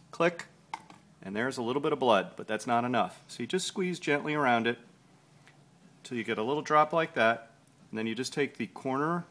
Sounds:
Speech

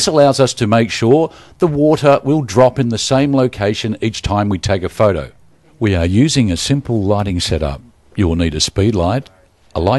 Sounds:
Speech

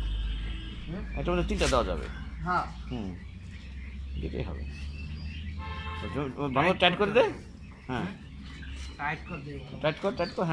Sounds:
francolin calling

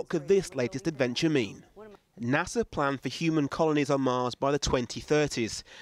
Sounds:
Speech

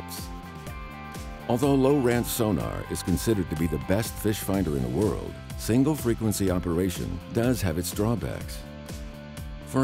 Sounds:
Speech, Music

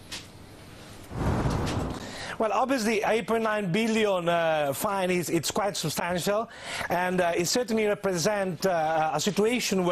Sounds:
Television, Speech

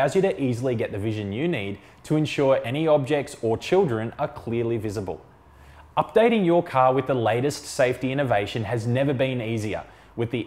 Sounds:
Speech

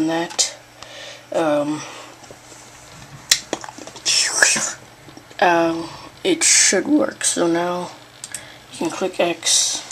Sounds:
Squish, Speech

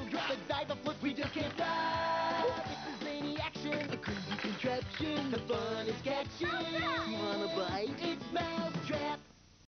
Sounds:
Speech, Music

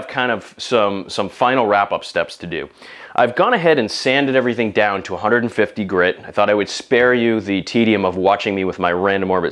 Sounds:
Speech

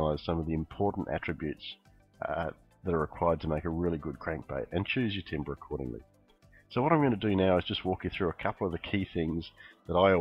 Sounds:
Speech

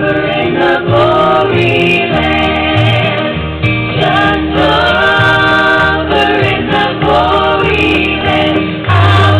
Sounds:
Country, Music, Singing

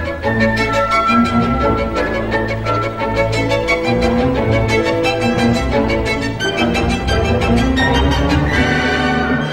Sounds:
Music, Musical instrument, Violin

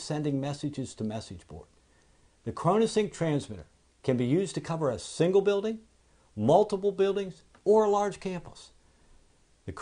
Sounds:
Speech

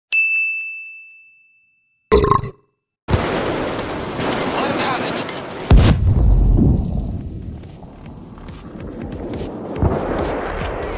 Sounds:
Ding

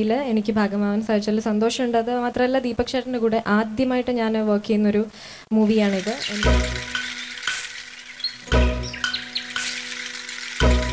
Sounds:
Speech, Music

